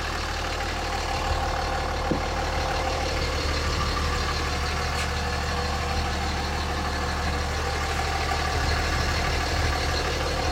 A truck engine is idling